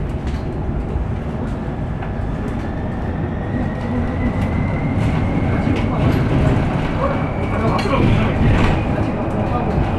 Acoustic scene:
bus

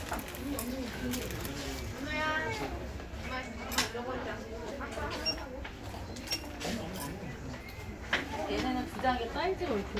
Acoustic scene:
crowded indoor space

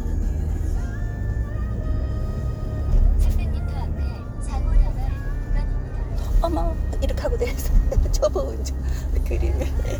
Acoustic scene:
car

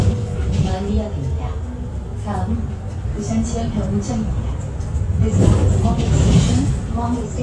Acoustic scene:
bus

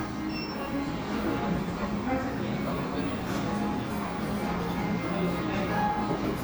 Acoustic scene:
cafe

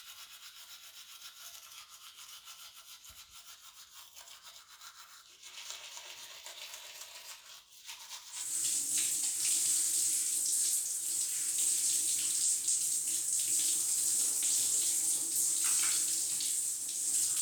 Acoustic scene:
restroom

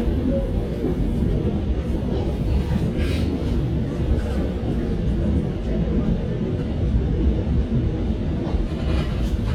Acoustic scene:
subway train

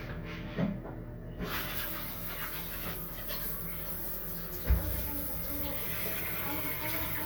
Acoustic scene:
restroom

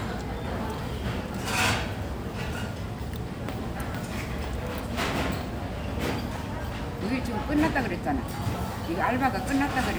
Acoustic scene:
cafe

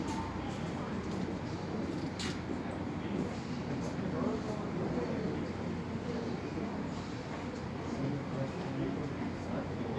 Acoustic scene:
subway station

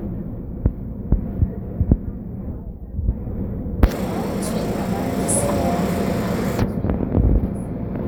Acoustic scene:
subway train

